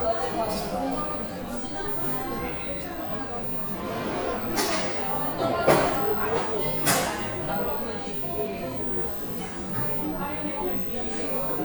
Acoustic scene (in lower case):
cafe